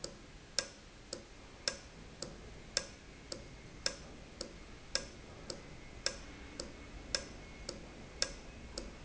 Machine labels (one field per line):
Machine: valve